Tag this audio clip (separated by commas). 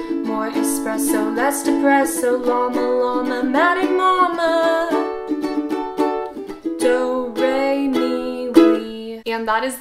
playing ukulele